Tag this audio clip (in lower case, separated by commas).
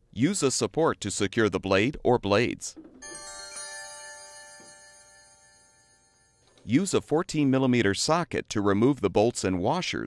speech, music